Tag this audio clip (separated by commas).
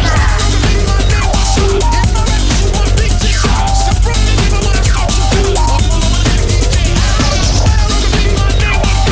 Music